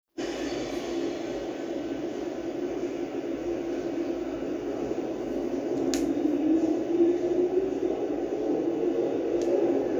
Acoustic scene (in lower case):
subway station